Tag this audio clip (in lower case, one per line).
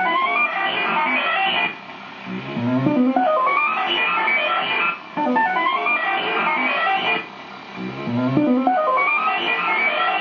music